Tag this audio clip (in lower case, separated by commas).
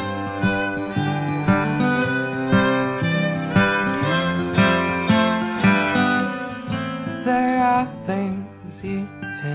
music